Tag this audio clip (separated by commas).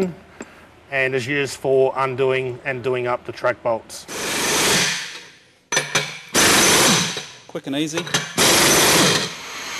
Tools, Speech